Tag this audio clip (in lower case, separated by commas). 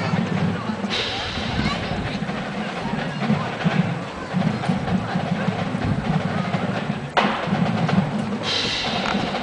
speech, music